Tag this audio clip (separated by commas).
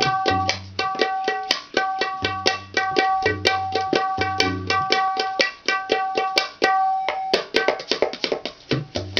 playing tabla